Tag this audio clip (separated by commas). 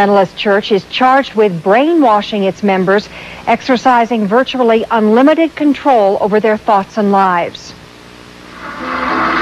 Speech